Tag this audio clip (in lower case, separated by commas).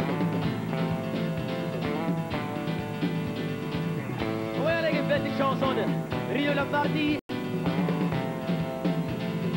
music